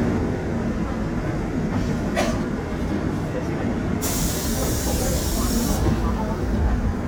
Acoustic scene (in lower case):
subway train